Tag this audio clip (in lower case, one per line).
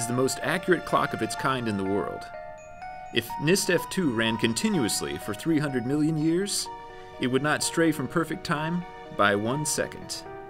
speech
music